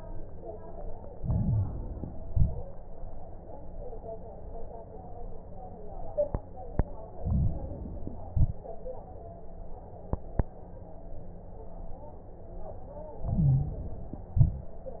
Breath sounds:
1.06-2.20 s: inhalation
1.06-2.20 s: crackles
2.20-2.71 s: exhalation
2.20-2.71 s: crackles
7.16-8.30 s: inhalation
7.16-8.30 s: crackles
8.32-8.83 s: exhalation
13.21-14.35 s: inhalation
13.21-14.35 s: crackles
14.33-14.84 s: exhalation
14.37-14.84 s: crackles

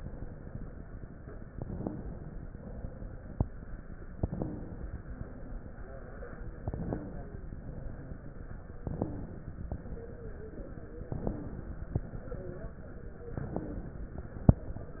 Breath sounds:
1.50-2.39 s: inhalation
1.59-2.09 s: wheeze
2.50-3.40 s: exhalation
4.21-4.82 s: wheeze
4.21-5.11 s: inhalation
5.18-6.07 s: exhalation
6.62-7.50 s: inhalation
6.62-7.50 s: wheeze
7.55-8.45 s: exhalation
8.82-9.70 s: inhalation
8.94-9.32 s: wheeze
9.77-11.08 s: exhalation
9.77-11.08 s: wheeze
11.12-11.99 s: inhalation
11.29-11.67 s: wheeze
11.99-13.30 s: exhalation
11.99-13.30 s: wheeze
13.38-14.25 s: inhalation
13.59-13.97 s: wheeze

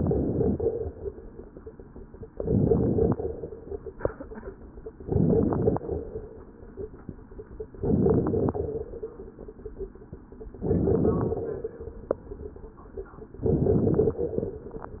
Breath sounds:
0.00-0.88 s: inhalation
0.00-0.88 s: crackles
2.31-3.19 s: inhalation
2.31-3.19 s: crackles
5.05-5.92 s: inhalation
5.05-5.92 s: crackles
7.78-8.65 s: inhalation
7.78-8.65 s: crackles
10.61-11.48 s: inhalation
10.61-11.48 s: crackles
13.41-14.29 s: inhalation
13.41-14.29 s: crackles

